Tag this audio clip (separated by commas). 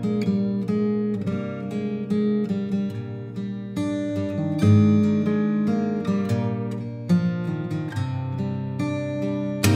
Plucked string instrument, Acoustic guitar, Guitar, Music, Musical instrument, Strum